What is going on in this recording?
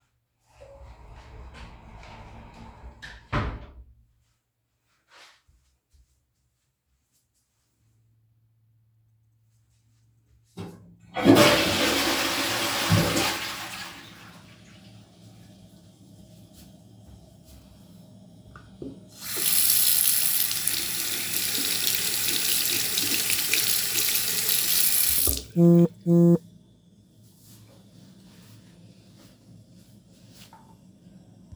I openened the bathroom door, walked in, flushed and then washed my hands